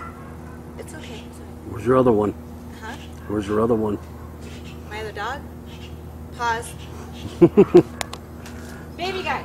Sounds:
outside, urban or man-made, Speech

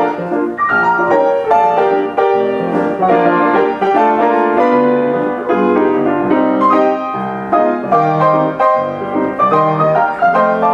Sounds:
Music

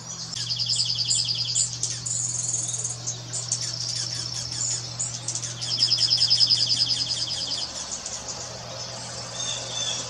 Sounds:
mynah bird singing

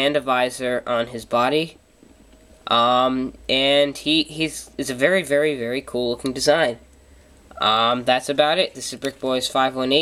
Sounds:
Speech

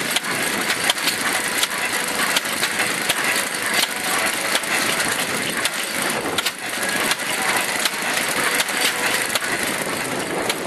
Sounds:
Engine

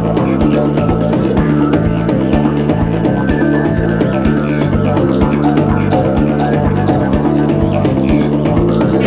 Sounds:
Music, Trance music, Didgeridoo

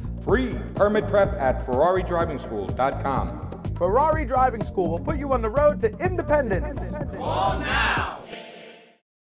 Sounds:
Speech, Music

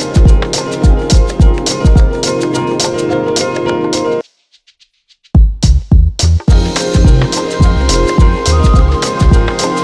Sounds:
Music

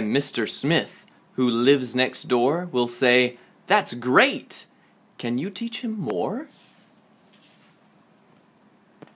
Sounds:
Speech

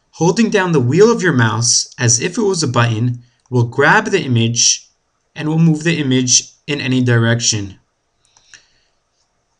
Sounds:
Speech

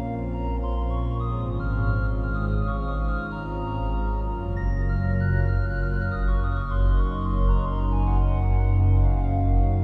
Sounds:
Music

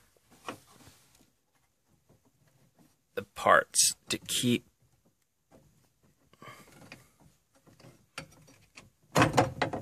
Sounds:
Speech

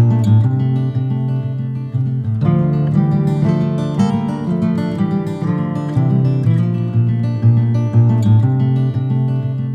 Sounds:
Tender music, Music

